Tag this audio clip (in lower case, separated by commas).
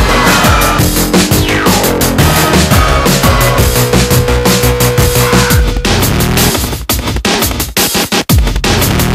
music